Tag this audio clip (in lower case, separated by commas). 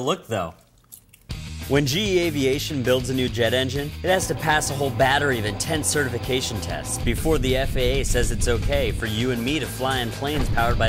music, speech, vehicle